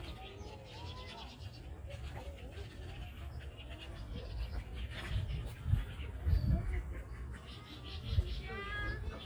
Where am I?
in a park